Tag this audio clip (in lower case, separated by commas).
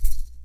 rattle (instrument), musical instrument, music, percussion